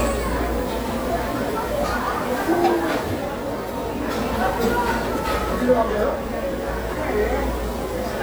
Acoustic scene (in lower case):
restaurant